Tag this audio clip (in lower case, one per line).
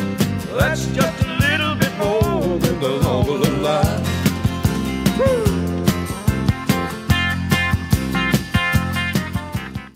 music